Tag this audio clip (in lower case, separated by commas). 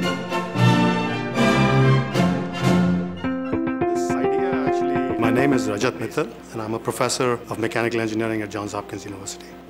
music, speech